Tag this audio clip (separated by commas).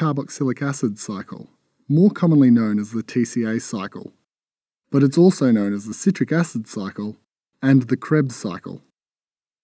monologue